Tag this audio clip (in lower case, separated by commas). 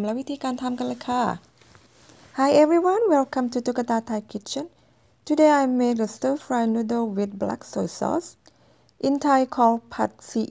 speech